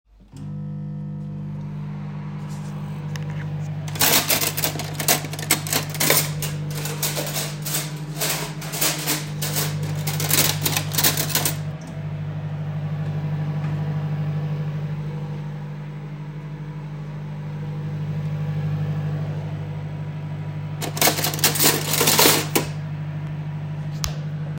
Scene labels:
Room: kitchen; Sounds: microwave, cutlery and dishes

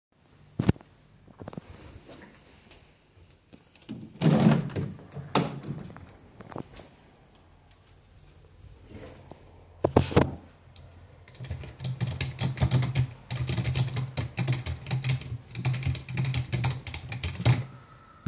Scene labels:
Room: bedroom; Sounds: window, keyboard typing

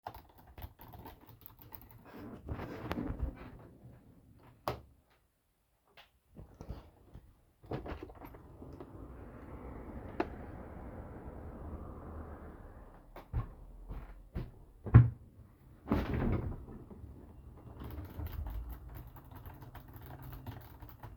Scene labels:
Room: office; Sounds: keyboard typing, light switch, window (more than once), footsteps

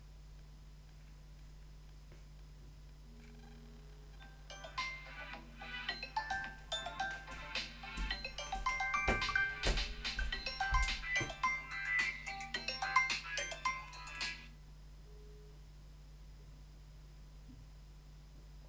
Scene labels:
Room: living room; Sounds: phone ringing, footsteps

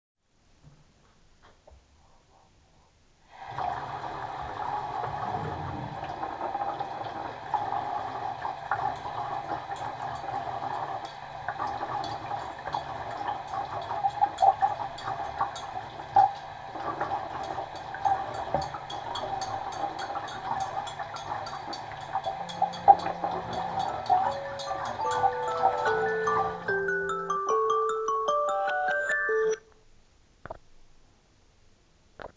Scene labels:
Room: kitchen; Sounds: running water, wardrobe or drawer, cutlery and dishes, phone ringing

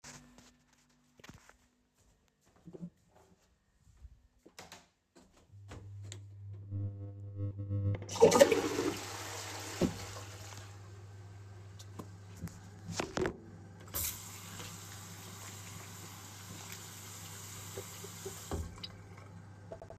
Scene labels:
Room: bedroom, lavatory; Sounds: light switch, toilet flushing, running water

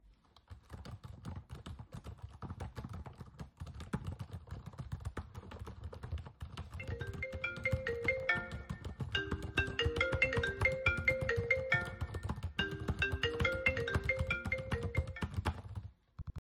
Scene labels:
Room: bedroom; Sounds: keyboard typing, phone ringing

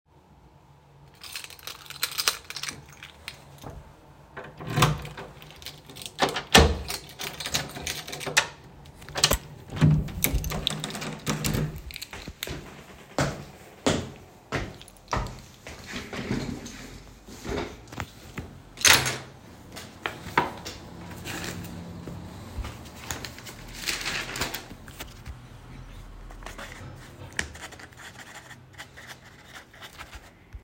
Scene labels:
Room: office; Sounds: keys, door, footsteps

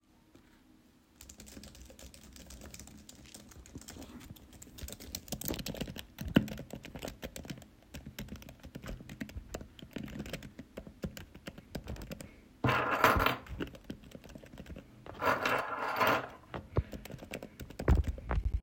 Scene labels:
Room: office; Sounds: keyboard typing, keys

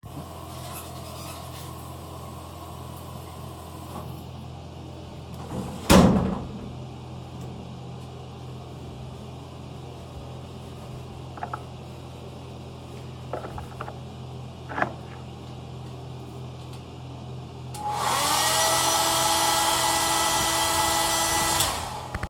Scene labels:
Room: bathroom; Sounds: running water

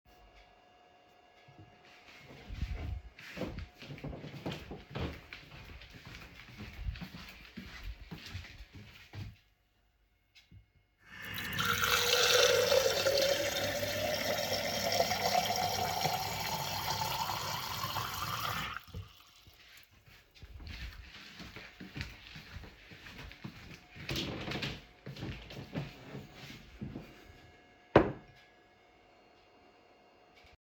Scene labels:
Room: kitchen, living room; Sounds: footsteps, running water

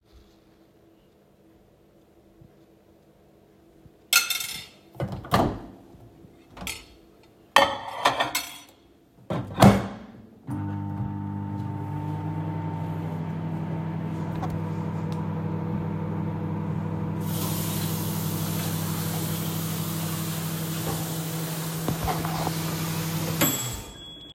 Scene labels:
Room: kitchen; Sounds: cutlery and dishes, microwave, running water

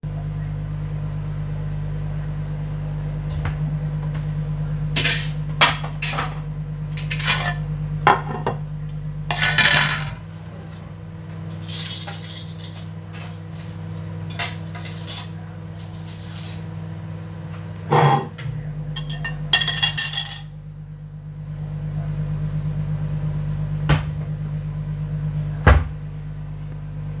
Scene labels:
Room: kitchen; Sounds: microwave, wardrobe or drawer (more than once), cutlery and dishes

